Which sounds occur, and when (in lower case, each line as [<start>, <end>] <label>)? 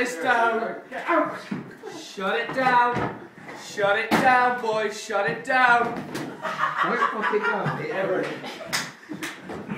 [0.00, 3.21] male speech
[0.00, 8.46] conversation
[0.00, 9.75] mechanisms
[1.43, 1.60] generic impact sounds
[2.40, 2.60] generic impact sounds
[2.89, 3.09] generic impact sounds
[3.34, 5.85] male speech
[4.06, 4.23] generic impact sounds
[5.37, 5.52] generic impact sounds
[5.77, 5.97] generic impact sounds
[6.10, 6.27] generic impact sounds
[6.31, 9.60] laughter
[6.77, 8.36] male speech
[8.65, 8.86] generic impact sounds
[9.16, 9.30] generic impact sounds
[9.43, 9.58] generic impact sounds